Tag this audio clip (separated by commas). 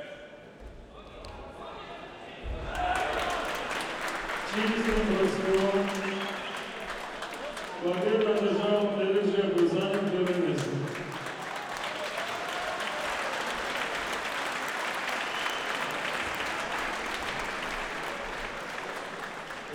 Applause, Human group actions